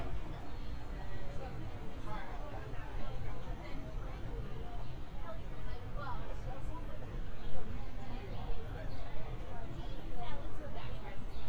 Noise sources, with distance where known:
person or small group talking, near

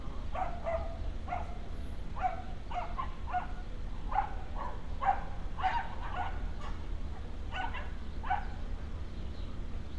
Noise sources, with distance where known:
dog barking or whining, near

